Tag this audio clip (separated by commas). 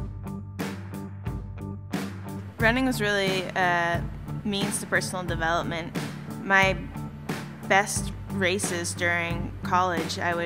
Speech, Music